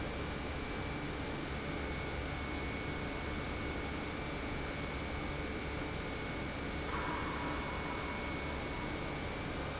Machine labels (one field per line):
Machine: pump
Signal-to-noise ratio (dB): -6 dB